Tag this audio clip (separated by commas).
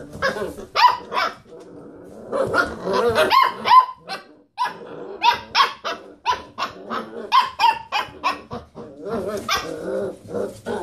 inside a large room or hall, Dog, Animal, Domestic animals